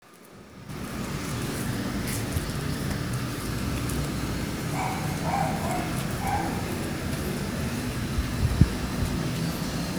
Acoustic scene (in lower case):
residential area